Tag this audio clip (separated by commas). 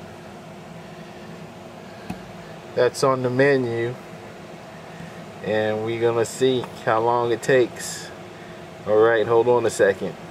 Speech